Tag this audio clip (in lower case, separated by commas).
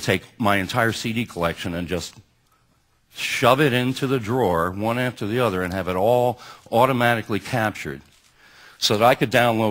speech